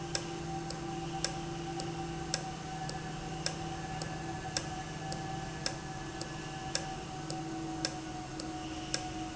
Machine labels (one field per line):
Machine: valve